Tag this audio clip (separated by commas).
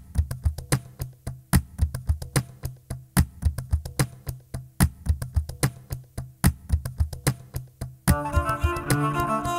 Music